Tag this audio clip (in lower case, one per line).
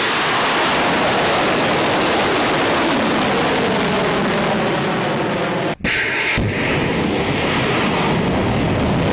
outside, rural or natural